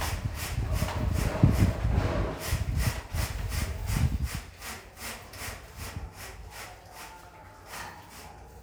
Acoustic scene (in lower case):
elevator